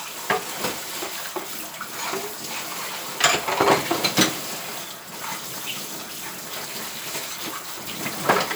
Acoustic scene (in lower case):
kitchen